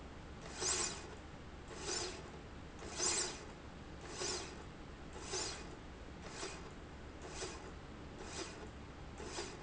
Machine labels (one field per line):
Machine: slide rail